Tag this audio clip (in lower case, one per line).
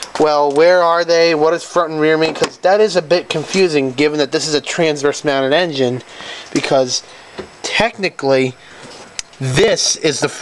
speech